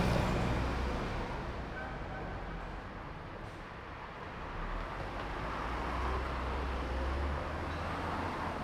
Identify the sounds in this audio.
bus, car, bus wheels rolling, bus engine accelerating, bus compressor, car wheels rolling